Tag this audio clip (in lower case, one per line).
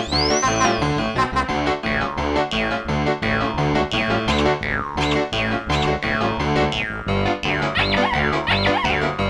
music